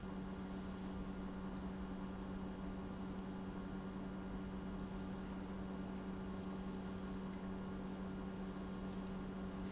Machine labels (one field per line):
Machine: pump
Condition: normal